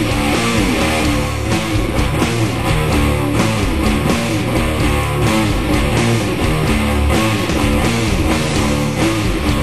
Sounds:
guitar
electric guitar
musical instrument
music

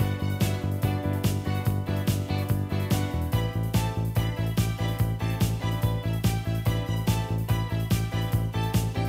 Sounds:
music

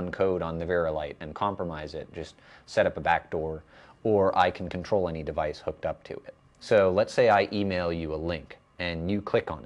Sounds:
speech

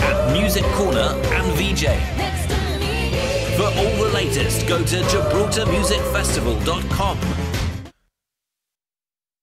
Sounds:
music
speech

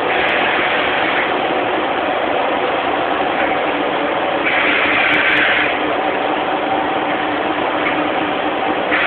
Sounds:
vehicle

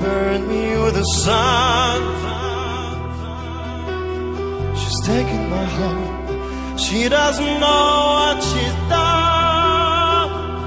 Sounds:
music

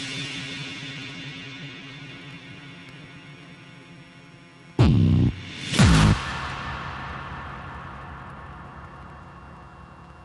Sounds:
inside a small room
music

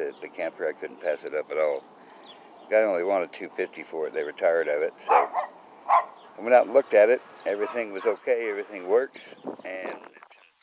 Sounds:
outside, rural or natural
speech

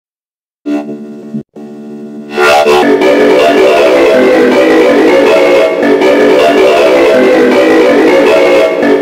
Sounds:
music

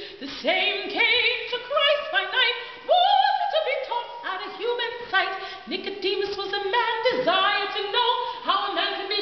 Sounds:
female singing

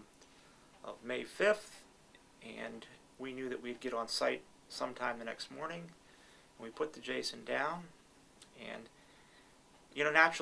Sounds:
speech

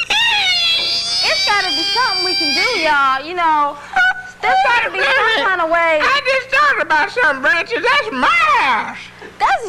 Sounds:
inside a small room
speech

